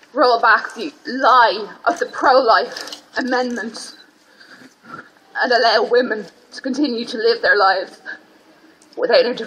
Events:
0.0s-0.1s: generic impact sounds
0.0s-9.4s: background noise
0.2s-0.9s: female speech
0.5s-0.8s: camera
1.0s-1.7s: female speech
1.2s-1.3s: camera
1.9s-2.1s: camera
1.9s-2.7s: female speech
2.7s-3.6s: camera
3.1s-4.0s: female speech
3.9s-4.0s: brief tone
4.1s-4.3s: camera
4.1s-4.3s: generic impact sounds
4.3s-4.8s: breathing
4.6s-4.8s: camera
4.8s-5.1s: human sounds
5.4s-6.2s: female speech
6.2s-6.4s: camera
6.5s-7.9s: female speech
7.8s-8.0s: camera
8.0s-8.2s: gasp
8.8s-9.0s: camera
9.0s-9.4s: female speech

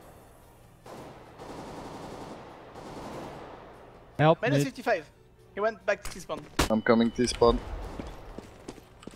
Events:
0.0s-9.1s: video game sound
0.8s-1.3s: gunfire
1.3s-2.5s: gunfire
2.7s-3.7s: gunfire
4.1s-5.0s: man speaking
5.4s-7.6s: man speaking
8.3s-8.4s: footsteps
8.6s-8.8s: footsteps
9.0s-9.1s: footsteps

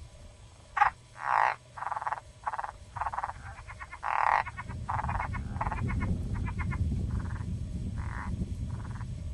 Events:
0.0s-9.3s: mechanisms
0.7s-0.9s: frog
1.1s-1.5s: frog
1.7s-2.2s: frog
2.4s-2.7s: frog
2.9s-3.3s: frog
3.4s-4.7s: frog
4.3s-9.3s: thunderstorm
4.8s-5.4s: frog
5.5s-6.0s: frog
6.3s-6.7s: frog
7.1s-7.4s: frog
7.9s-8.3s: frog
8.7s-9.0s: frog

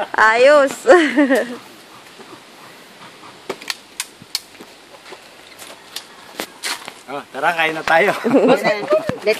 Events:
0.0s-9.3s: background noise
0.1s-9.3s: conversation
0.1s-8.2s: conversation
0.1s-0.8s: female speech
0.7s-0.8s: clicking
0.8s-1.6s: giggle
1.3s-1.4s: generic impact sounds
1.4s-1.6s: surface contact
1.8s-2.0s: surface contact
2.2s-2.4s: surface contact
2.6s-2.7s: surface contact
2.9s-3.0s: surface contact
3.2s-3.4s: surface contact
3.4s-3.5s: generic impact sounds
3.6s-3.7s: tick
3.9s-4.0s: tick
4.3s-4.4s: tick
4.5s-4.6s: generic impact sounds
4.9s-5.1s: generic impact sounds
5.4s-5.7s: generic impact sounds
5.9s-6.0s: tick
6.3s-6.4s: tick
6.6s-6.7s: tick
6.8s-6.9s: clicking
7.0s-7.2s: man speaking
7.3s-8.1s: man speaking
7.4s-8.2s: surface contact
7.8s-7.9s: generic impact sounds
8.1s-9.2s: giggle
9.0s-9.1s: generic impact sounds

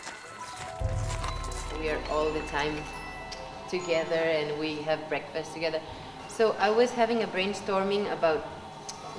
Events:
0.0s-0.2s: footsteps
0.0s-3.6s: music
0.0s-9.1s: mechanisms
0.4s-0.7s: footsteps
1.0s-1.3s: footsteps
1.4s-1.7s: footsteps
1.7s-2.9s: female speech
2.4s-2.6s: footsteps
2.8s-2.9s: footsteps
3.3s-3.4s: tick
3.7s-5.8s: female speech
5.8s-6.3s: breathing
6.3s-8.4s: female speech
8.9s-8.9s: tick

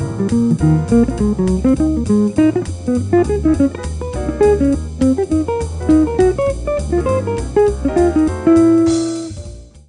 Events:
0.0s-9.8s: music

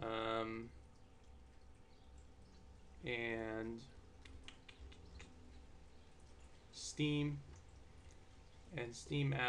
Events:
0.0s-0.8s: male speech
0.0s-8.8s: water
0.0s-9.4s: mechanisms
1.9s-2.1s: bird song
2.4s-2.7s: bird song
3.0s-3.8s: male speech
4.2s-4.5s: human sounds
4.7s-5.0s: human sounds
5.2s-5.6s: human sounds
6.7s-7.4s: male speech
7.5s-7.8s: clicking
8.1s-8.2s: generic impact sounds
8.7s-9.4s: male speech

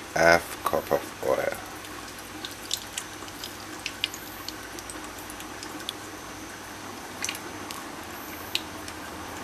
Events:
0.0s-9.4s: mechanisms
0.1s-0.4s: male speech
0.6s-1.0s: male speech
1.2s-1.6s: male speech
1.8s-5.9s: pour
7.1s-7.4s: pour
7.6s-7.8s: pour
8.5s-8.6s: pour
8.8s-9.0s: pour

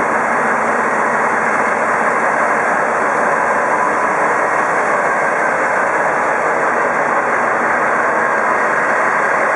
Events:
0.0s-9.5s: idling
0.0s-9.5s: truck

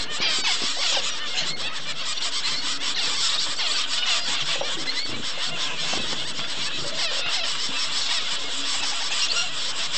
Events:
0.0s-9.9s: bird vocalization
0.0s-9.9s: wind
0.1s-0.2s: generic impact sounds
0.3s-0.4s: generic impact sounds
0.6s-0.6s: generic impact sounds
0.9s-1.0s: generic impact sounds
1.3s-1.4s: generic impact sounds
1.6s-1.7s: generic impact sounds
5.9s-6.1s: generic impact sounds

